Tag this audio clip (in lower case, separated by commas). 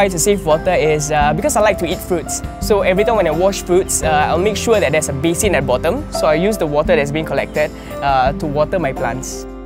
music, speech